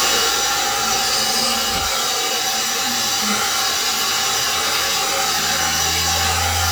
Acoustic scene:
restroom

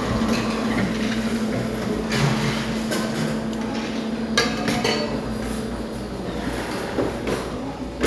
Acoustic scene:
cafe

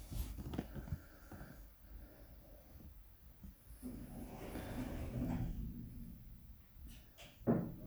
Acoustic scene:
elevator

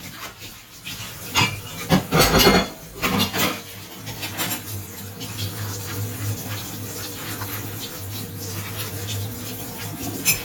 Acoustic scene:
kitchen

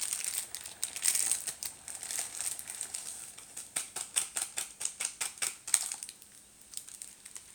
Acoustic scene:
kitchen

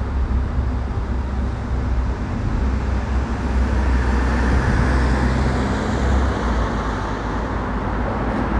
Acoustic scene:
street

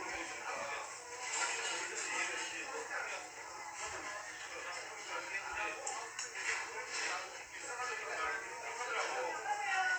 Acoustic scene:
restaurant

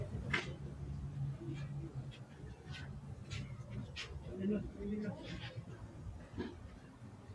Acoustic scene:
residential area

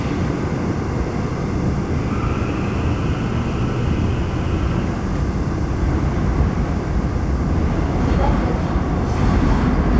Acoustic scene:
subway train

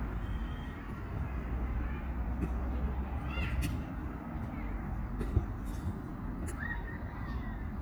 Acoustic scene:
park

